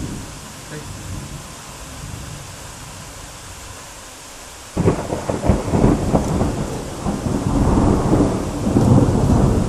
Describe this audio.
Rain is falling hard and thunder rumbles in the distance